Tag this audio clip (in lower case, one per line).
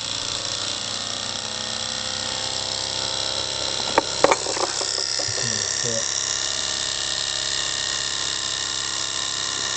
speech
engine